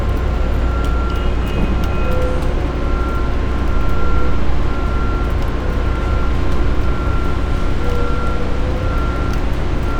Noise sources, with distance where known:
car horn
reverse beeper

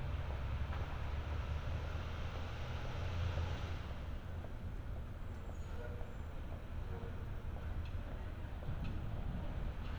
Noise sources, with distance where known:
background noise

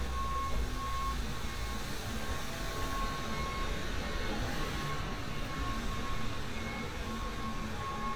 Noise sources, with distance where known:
reverse beeper

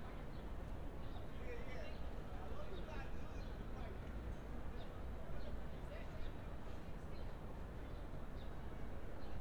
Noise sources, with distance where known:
person or small group talking

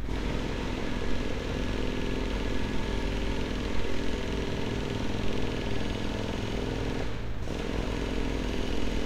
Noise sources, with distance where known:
jackhammer

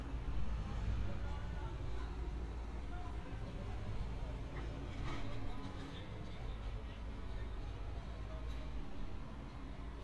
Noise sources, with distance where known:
unidentified human voice, far

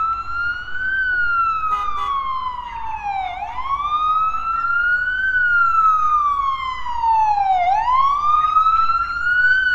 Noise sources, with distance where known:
car horn, near
siren, near

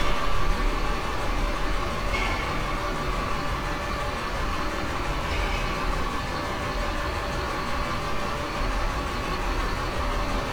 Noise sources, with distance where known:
large-sounding engine, near

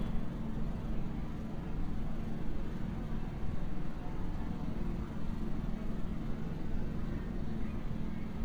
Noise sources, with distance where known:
engine of unclear size, far

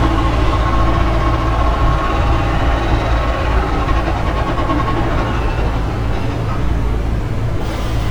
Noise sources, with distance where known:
unidentified impact machinery, near

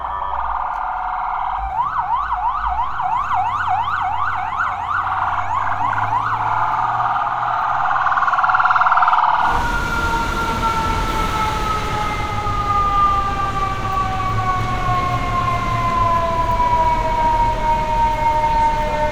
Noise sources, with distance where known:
siren, near

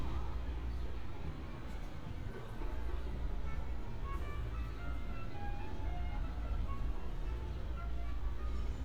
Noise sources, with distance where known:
music from an unclear source, far

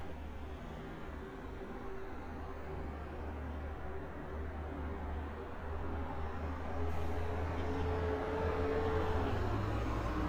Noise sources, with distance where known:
medium-sounding engine

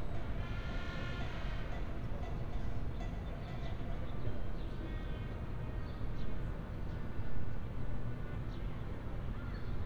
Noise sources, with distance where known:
music from an unclear source, far

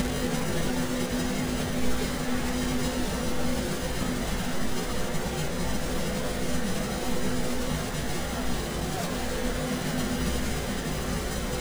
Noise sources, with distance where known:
unidentified human voice

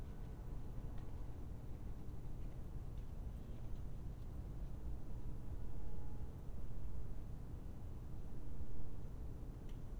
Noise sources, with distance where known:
background noise

